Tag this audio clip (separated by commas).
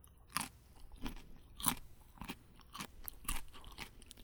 mastication